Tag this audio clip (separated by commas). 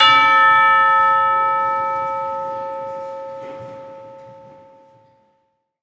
Bell, Music, Percussion, Church bell, Musical instrument